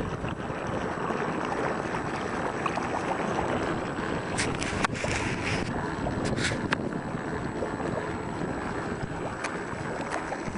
On a windy day, water boat moves quickly through water and makes gurgling noise as it passes